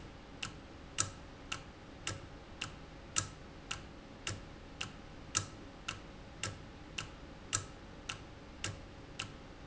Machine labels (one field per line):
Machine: valve